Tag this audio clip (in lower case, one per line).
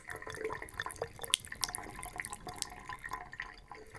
home sounds
sink (filling or washing)